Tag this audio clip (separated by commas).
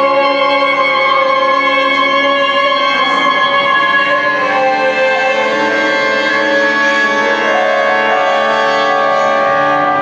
Classical music, Music